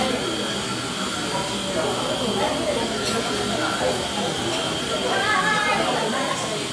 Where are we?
in a cafe